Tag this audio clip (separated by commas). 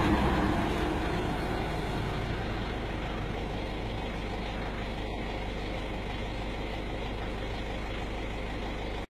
driving buses, Bus, Vehicle